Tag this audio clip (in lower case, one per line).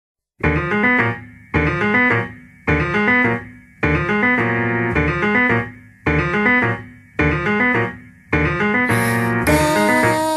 music
electric piano